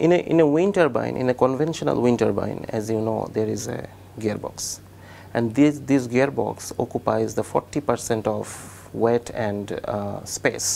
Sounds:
speech

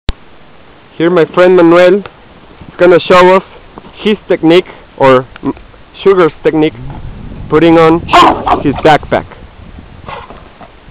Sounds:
animal, dog, speech, outside, rural or natural

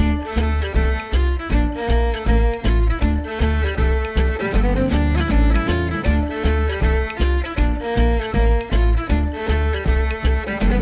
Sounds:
rhythm and blues, music

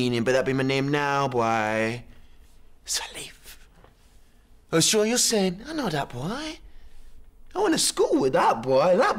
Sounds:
speech

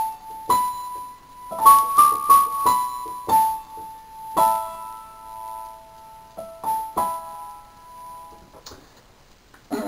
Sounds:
electric piano, music, piano, keyboard (musical), musical instrument

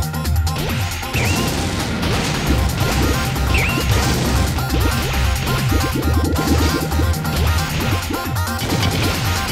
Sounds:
music

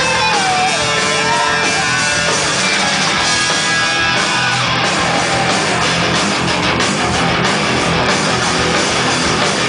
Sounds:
music

